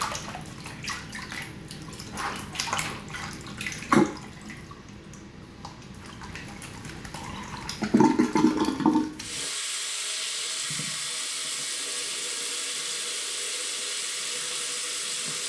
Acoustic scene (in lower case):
restroom